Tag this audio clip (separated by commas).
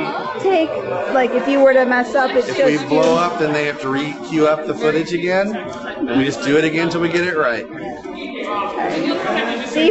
Speech